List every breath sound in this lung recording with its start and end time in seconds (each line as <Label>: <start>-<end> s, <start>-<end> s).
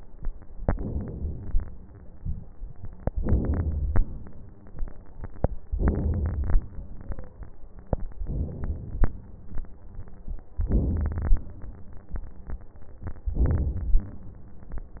Inhalation: 0.66-1.55 s, 3.14-4.02 s, 5.71-6.60 s, 8.26-9.14 s, 10.69-11.58 s, 13.34-14.23 s